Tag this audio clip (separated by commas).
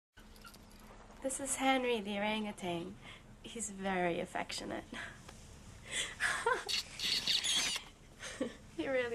Speech, Animal